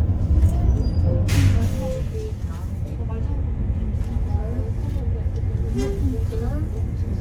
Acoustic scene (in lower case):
bus